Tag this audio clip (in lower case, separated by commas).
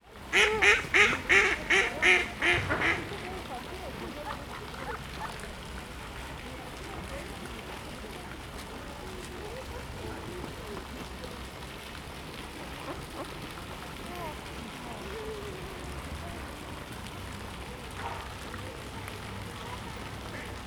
livestock, animal, fowl